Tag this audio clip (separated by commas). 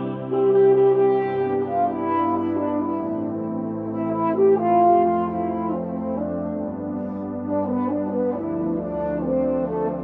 playing french horn